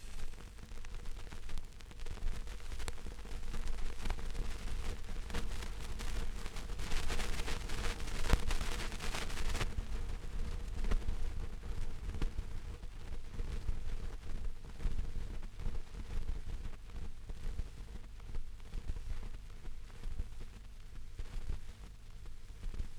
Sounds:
Crackle

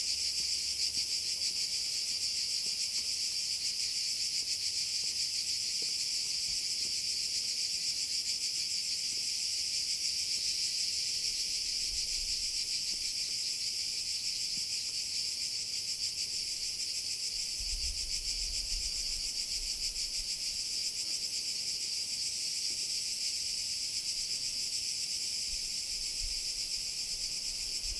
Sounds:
Insect, Cricket, Wild animals, Animal

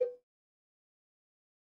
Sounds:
Cowbell, Bell

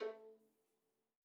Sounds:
Musical instrument, Bowed string instrument, Music

